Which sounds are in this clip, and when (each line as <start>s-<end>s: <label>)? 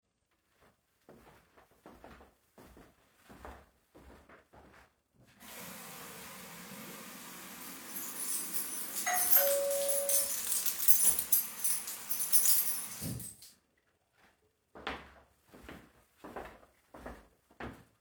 1.0s-5.1s: footsteps
5.4s-13.4s: running water
7.8s-13.5s: keys
9.0s-10.3s: bell ringing
14.7s-17.9s: footsteps